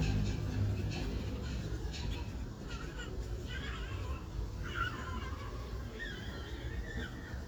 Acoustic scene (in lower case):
residential area